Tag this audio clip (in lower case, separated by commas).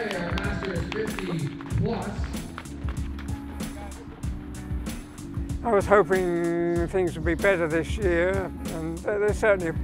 music, speech